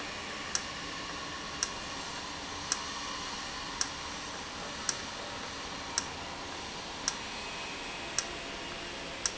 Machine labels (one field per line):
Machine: valve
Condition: normal